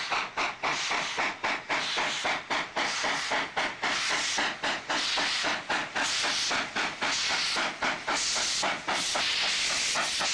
A steam engine runs and hisses